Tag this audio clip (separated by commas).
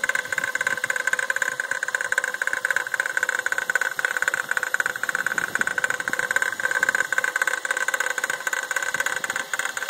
car engine knocking